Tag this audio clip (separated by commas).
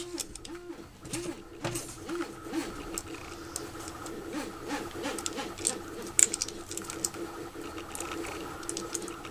inside a small room